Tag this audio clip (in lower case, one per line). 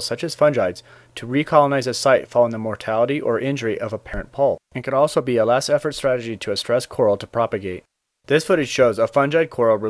speech